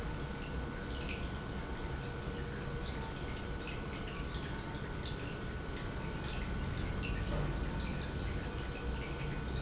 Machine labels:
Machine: pump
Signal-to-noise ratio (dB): -6 dB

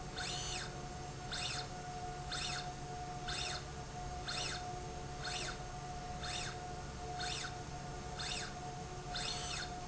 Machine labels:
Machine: slide rail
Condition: normal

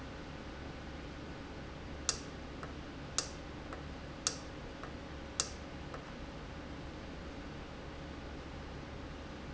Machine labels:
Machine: valve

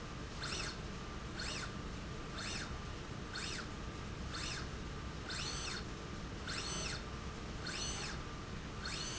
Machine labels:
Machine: slide rail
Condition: normal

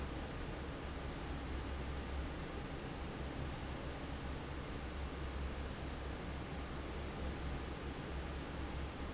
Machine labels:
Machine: fan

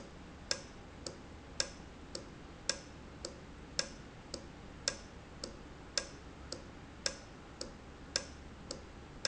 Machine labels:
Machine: valve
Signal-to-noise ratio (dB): 6 dB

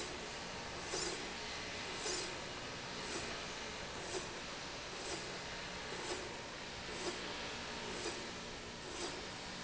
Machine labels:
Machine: slide rail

